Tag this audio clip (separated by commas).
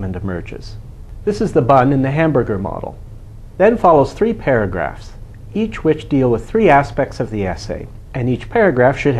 Speech